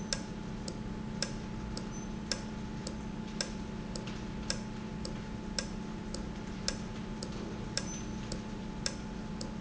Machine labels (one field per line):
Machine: valve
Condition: normal